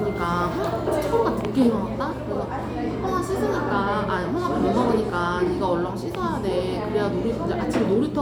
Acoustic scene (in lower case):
cafe